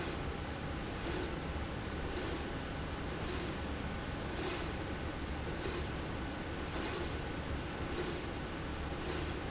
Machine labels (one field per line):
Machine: slide rail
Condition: normal